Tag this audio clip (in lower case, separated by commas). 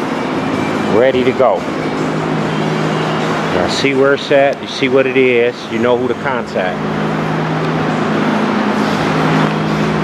speech, vehicle